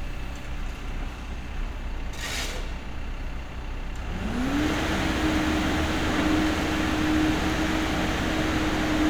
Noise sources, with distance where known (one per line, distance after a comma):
engine of unclear size, near